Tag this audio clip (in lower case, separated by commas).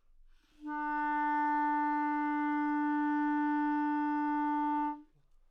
woodwind instrument, music, musical instrument